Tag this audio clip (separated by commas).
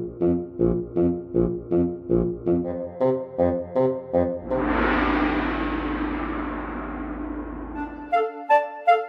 Music